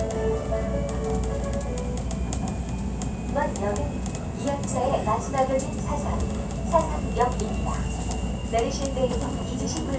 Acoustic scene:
subway train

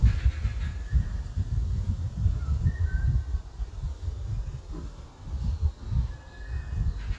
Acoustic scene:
park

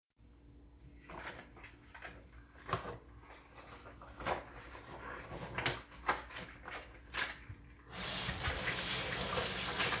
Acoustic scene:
kitchen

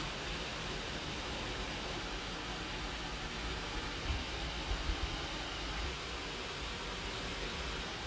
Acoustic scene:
park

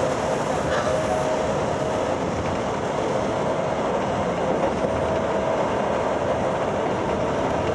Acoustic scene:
subway train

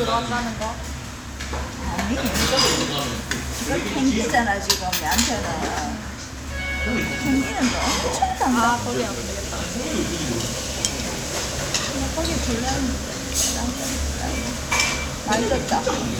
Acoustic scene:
restaurant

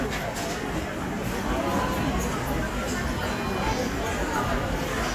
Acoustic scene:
crowded indoor space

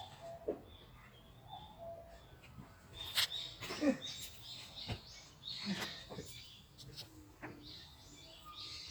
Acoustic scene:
park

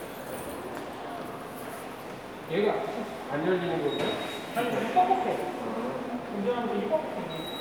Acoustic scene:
subway station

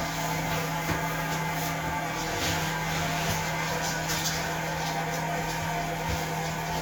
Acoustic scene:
restroom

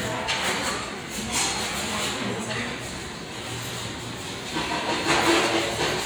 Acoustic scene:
restaurant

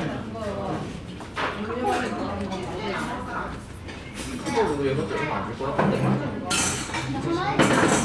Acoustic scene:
restaurant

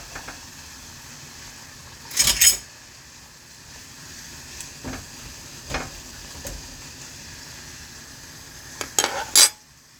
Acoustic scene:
kitchen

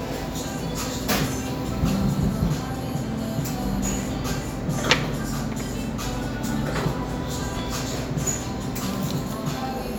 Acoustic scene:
cafe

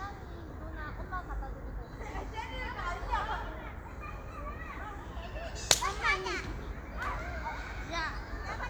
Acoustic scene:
park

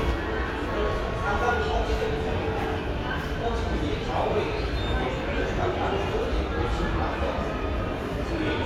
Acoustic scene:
subway station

